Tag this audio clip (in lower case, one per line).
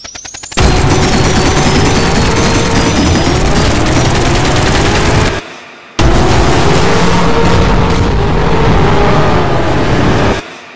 fusillade